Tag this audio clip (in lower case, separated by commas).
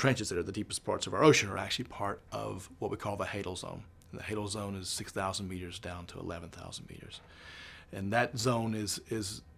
speech